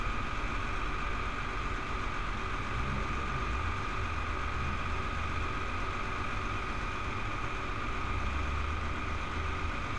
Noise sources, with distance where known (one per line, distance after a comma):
engine of unclear size